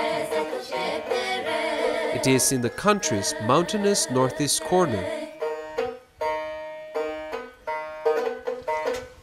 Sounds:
Speech, Music

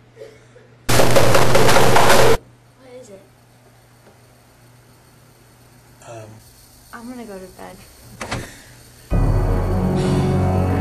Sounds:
Speech, Music

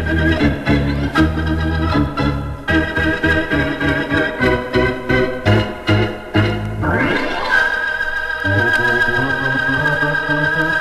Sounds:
Music, Organ, Hammond organ

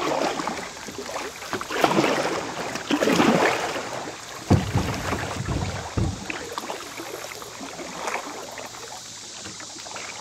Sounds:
Water vehicle, kayak, Vehicle, canoe

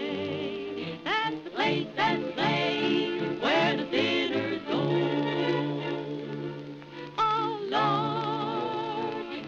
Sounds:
Music

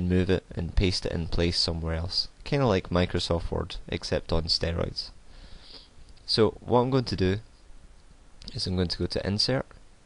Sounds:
Speech

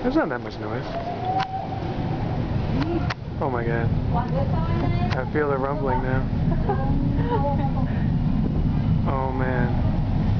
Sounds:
Speech

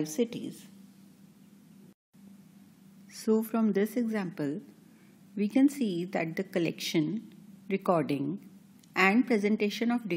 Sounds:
Speech

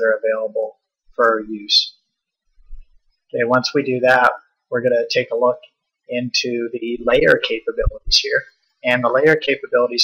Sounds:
Speech

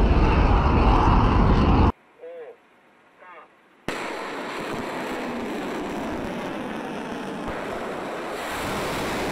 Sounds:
missile launch

